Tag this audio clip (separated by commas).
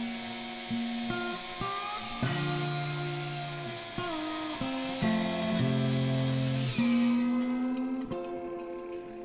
Music